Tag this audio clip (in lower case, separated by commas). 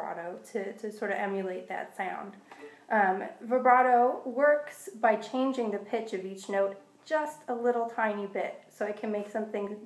speech